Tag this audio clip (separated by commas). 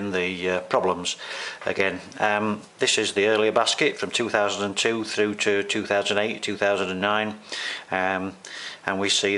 Speech